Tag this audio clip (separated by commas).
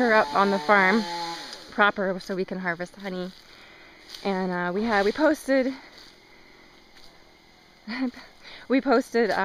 Speech